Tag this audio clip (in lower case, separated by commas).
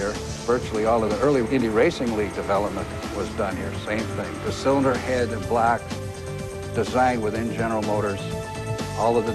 speech, music